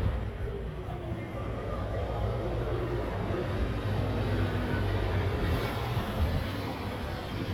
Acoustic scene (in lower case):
residential area